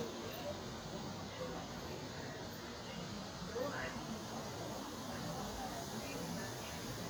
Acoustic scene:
park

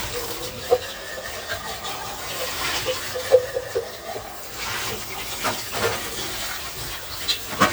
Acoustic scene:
kitchen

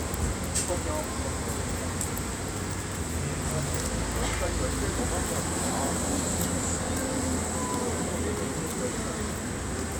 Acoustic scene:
street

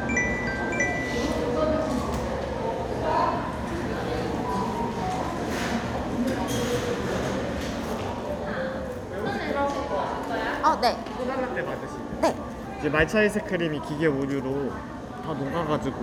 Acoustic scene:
cafe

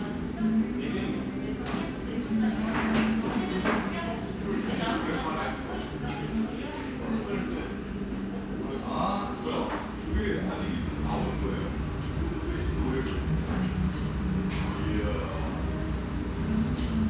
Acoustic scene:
restaurant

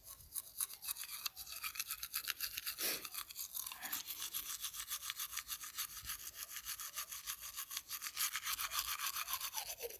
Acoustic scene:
restroom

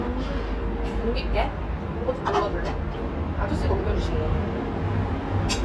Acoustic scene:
restaurant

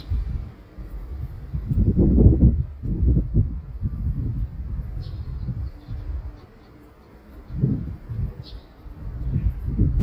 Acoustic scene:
residential area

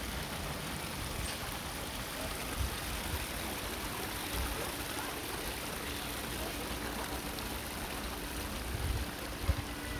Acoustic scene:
park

